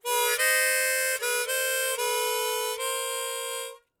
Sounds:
Harmonica, Musical instrument, Music

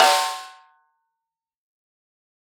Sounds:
Drum, Percussion, Snare drum, Music, Musical instrument

